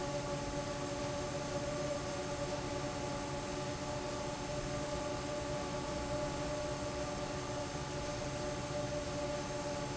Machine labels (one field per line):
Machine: fan